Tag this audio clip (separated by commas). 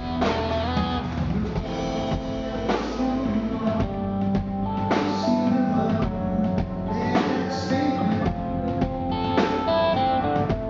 Plucked string instrument, Strum, Guitar, Music, Musical instrument